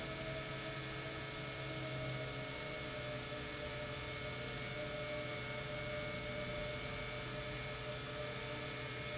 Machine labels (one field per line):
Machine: pump